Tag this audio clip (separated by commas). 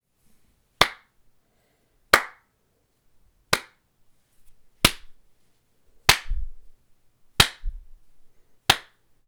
Hands, Clapping